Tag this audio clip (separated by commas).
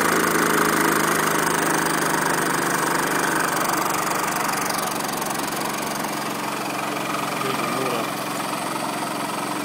Speech, Medium engine (mid frequency), Engine